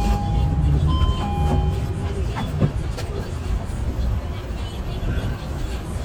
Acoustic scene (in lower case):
bus